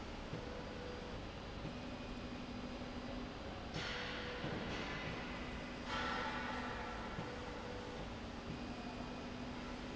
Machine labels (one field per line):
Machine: slide rail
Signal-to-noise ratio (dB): 0 dB